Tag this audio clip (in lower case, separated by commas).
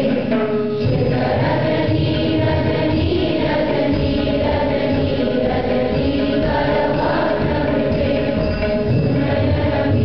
mantra, music